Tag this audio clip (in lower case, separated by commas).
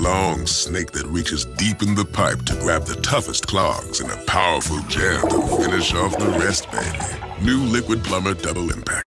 music, drip, speech